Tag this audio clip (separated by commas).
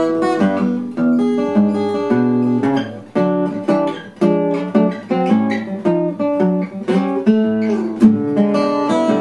Music